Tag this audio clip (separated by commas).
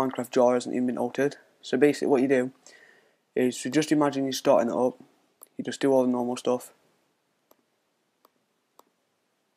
Speech